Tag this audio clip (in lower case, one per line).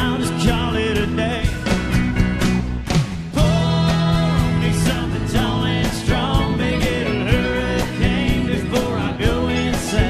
music